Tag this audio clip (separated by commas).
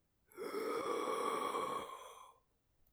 Respiratory sounds, Breathing